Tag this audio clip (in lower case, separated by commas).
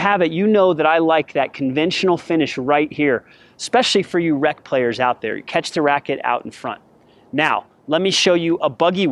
speech